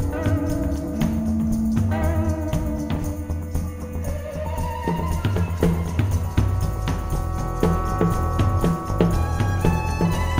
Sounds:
Music

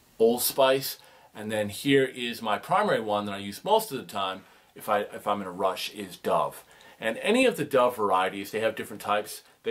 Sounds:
Speech

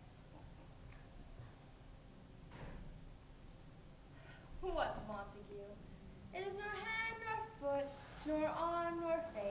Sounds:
Speech

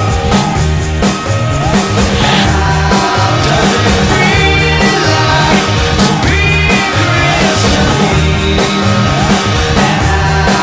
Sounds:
Grunge, Music

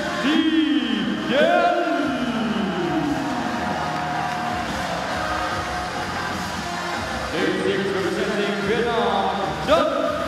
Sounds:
Music, Speech

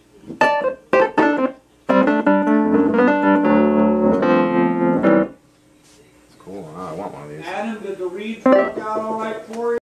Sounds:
Music, Speech

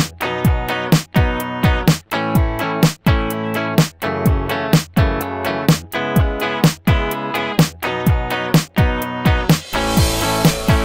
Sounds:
Music

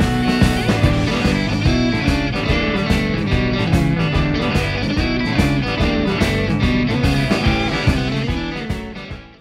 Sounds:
Music

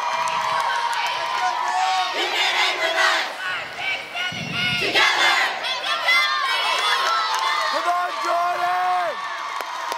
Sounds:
Speech

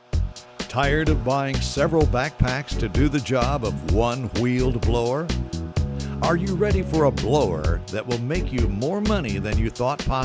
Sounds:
Music, Speech

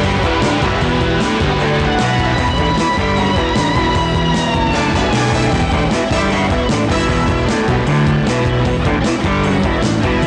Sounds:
Music, Rock and roll

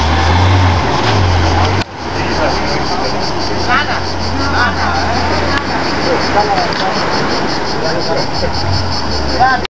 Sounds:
Speech, Vehicle

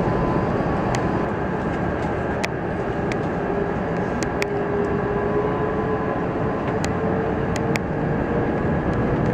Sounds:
Aircraft, Vehicle

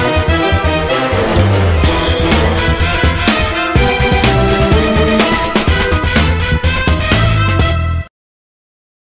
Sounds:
Music

